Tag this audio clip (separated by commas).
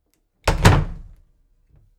Slam, home sounds, Door